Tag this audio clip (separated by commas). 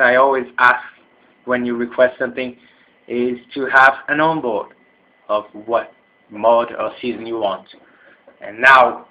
Speech